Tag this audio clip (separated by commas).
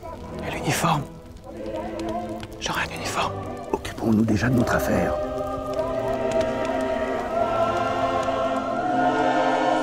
Speech, Music